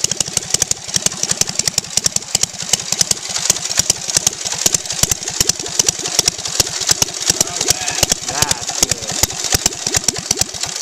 An engine is idling and a man speaks